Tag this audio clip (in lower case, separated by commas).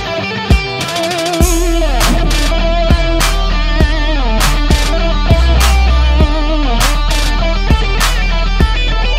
music, heavy metal